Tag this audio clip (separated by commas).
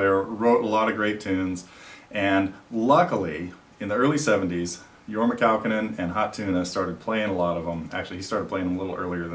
Speech